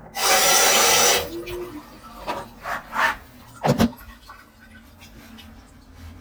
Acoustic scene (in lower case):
restroom